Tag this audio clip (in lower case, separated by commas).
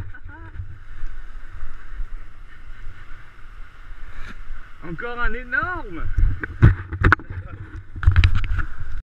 speech, stream